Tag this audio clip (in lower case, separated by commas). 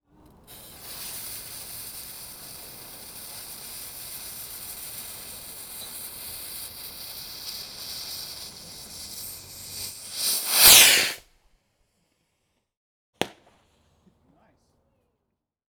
explosion, fireworks